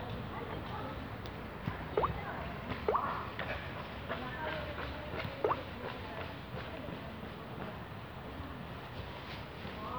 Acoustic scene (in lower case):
residential area